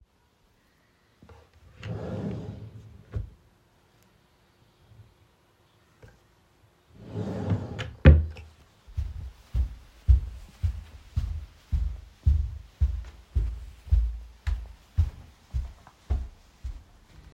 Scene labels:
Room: bedroom; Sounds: wardrobe or drawer (more than once), footsteps

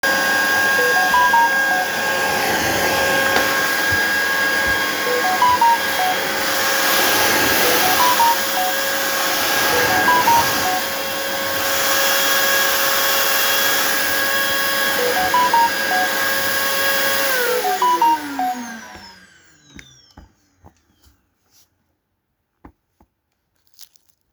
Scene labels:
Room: living room; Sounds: vacuum cleaner, phone ringing

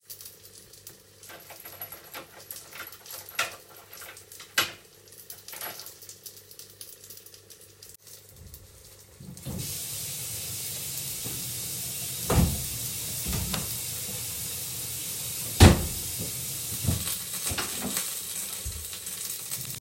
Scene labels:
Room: kitchen; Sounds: keys, running water, door (more than once)

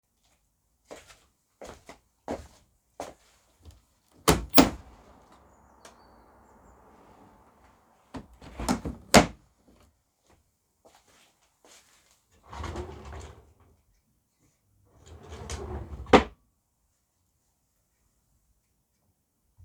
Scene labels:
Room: bedroom; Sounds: footsteps, window (more than once), wardrobe or drawer (more than once)

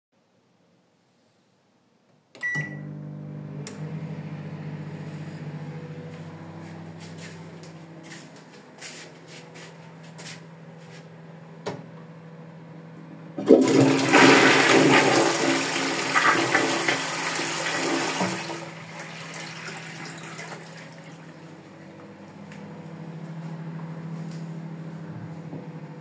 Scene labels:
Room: kitchen, bathroom; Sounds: microwave, footsteps, toilet flushing

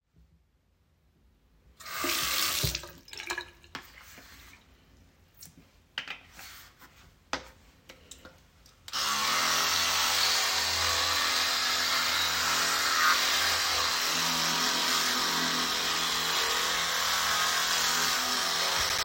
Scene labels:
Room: bathroom; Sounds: running water

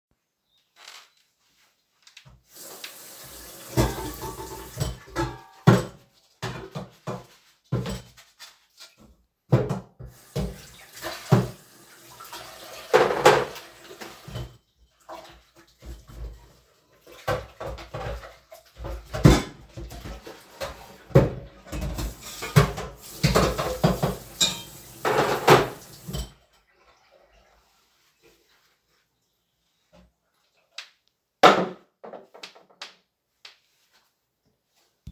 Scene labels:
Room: kitchen; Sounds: running water, cutlery and dishes

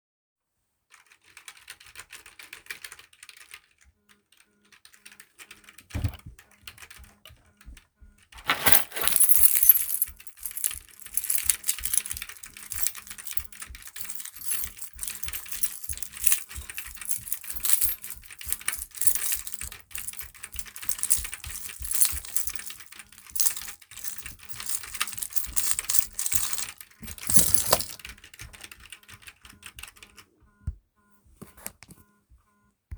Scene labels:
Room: office; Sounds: keyboard typing, phone ringing, keys

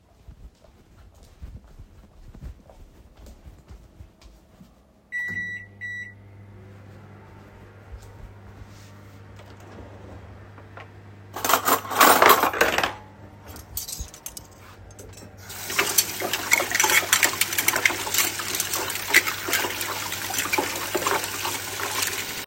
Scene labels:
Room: kitchen; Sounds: footsteps, microwave, wardrobe or drawer, cutlery and dishes, running water

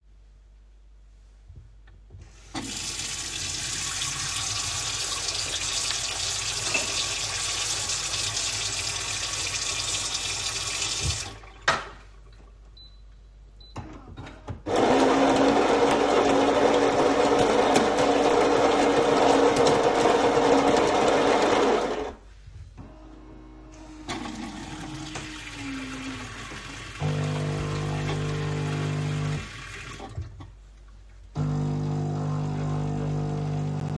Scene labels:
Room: kitchen; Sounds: running water, coffee machine

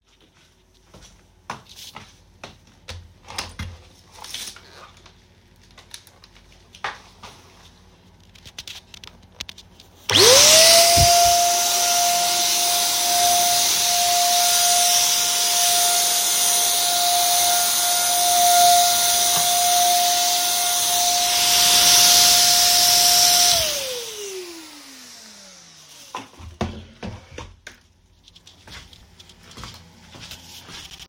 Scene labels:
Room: hallway; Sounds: footsteps, vacuum cleaner

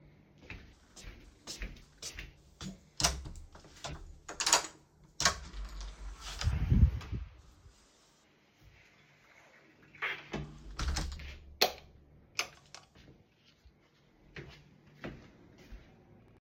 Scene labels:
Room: hallway; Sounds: footsteps, door (more than once), light switch

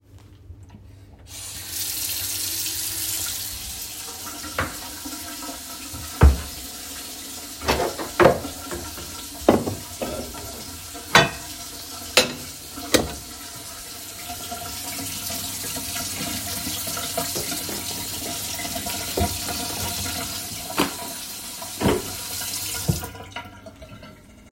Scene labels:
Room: kitchen; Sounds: running water, cutlery and dishes

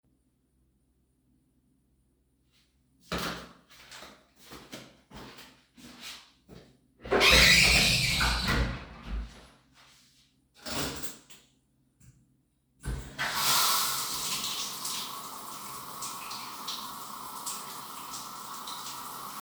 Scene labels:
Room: bathroom; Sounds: footsteps, door (more than once), wardrobe or drawer, running water

